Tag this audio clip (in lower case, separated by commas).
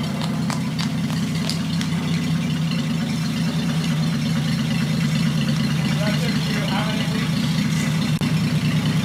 car, vehicle, truck